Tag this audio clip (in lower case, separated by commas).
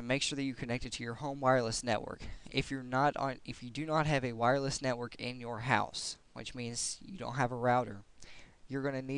speech